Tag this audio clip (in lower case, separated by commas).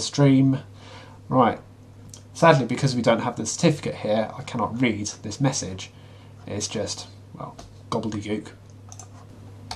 computer keyboard, speech